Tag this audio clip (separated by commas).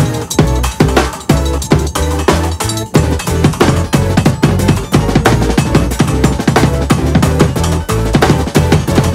playing bass drum